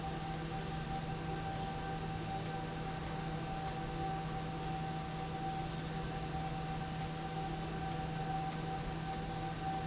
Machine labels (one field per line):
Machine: slide rail